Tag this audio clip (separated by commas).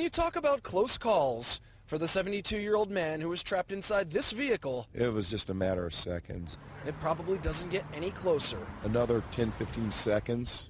Speech